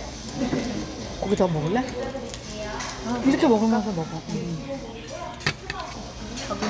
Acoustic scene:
restaurant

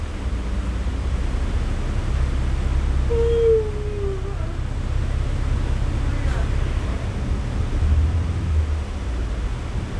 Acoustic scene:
bus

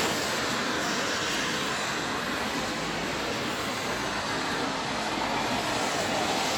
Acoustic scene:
street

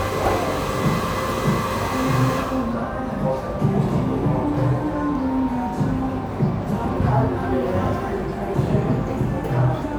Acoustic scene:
cafe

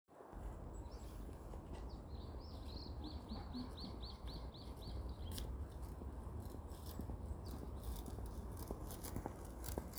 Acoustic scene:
residential area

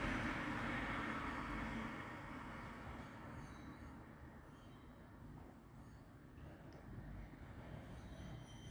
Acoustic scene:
street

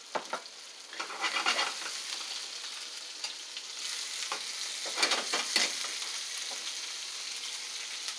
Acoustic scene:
kitchen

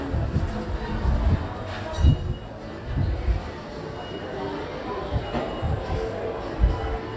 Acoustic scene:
crowded indoor space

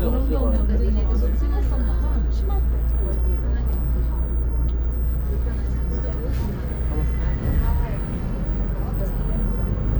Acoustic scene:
bus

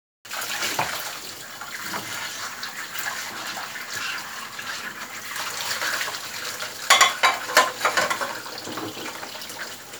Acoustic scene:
kitchen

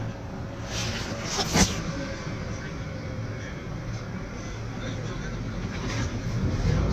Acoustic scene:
bus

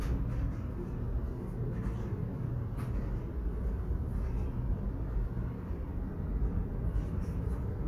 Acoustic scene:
subway station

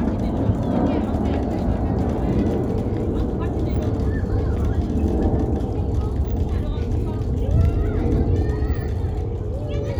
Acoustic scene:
residential area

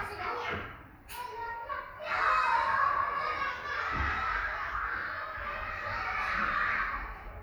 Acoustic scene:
crowded indoor space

